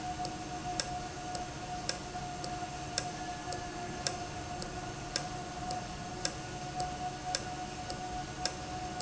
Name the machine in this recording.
valve